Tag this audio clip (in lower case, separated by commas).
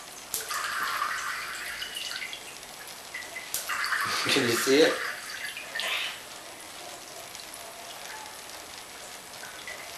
water tap, water